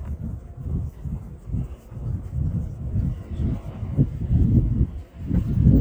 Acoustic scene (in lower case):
residential area